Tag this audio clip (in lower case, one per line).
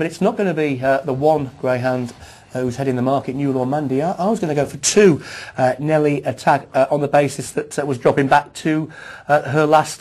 speech